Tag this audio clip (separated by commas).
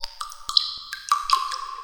Water, Raindrop, Rain